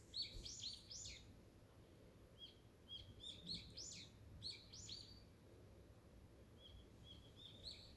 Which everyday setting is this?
park